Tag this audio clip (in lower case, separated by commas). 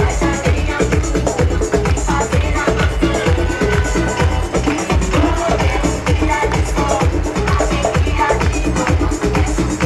music, electronica